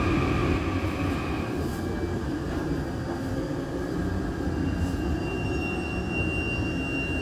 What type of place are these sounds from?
subway train